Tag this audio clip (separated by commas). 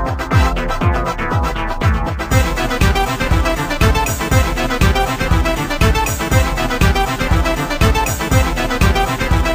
Music, Percussion